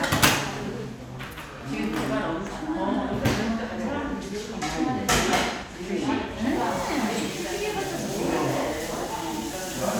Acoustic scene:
crowded indoor space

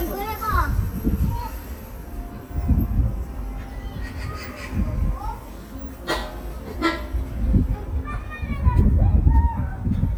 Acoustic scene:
park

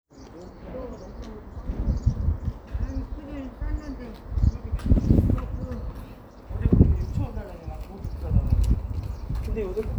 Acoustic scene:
residential area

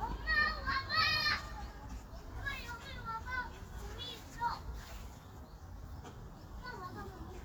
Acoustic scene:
park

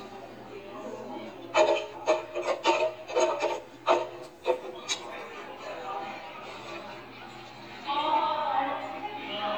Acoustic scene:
cafe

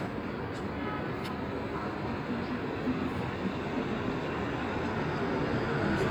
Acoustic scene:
street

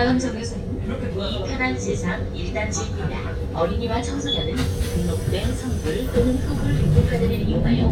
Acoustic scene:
bus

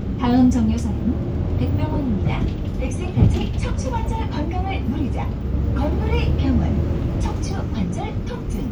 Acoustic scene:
bus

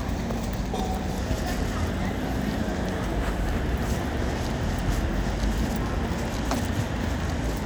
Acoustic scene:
street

